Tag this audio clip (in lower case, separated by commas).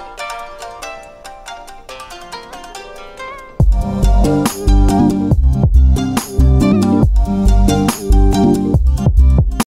music